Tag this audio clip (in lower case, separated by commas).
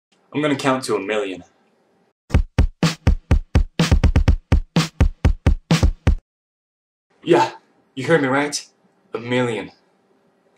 inside a small room, music, speech